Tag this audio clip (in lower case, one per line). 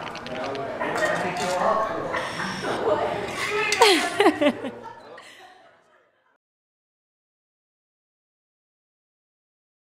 spray
speech